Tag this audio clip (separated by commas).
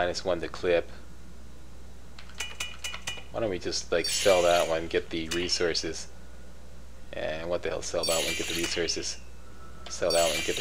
inside a small room, Speech